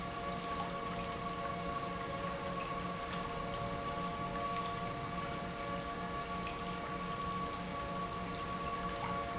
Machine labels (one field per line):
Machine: pump